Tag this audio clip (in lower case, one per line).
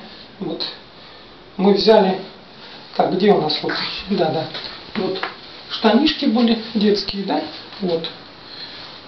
speech